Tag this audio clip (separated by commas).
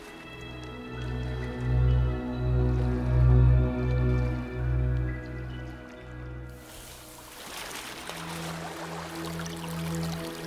Music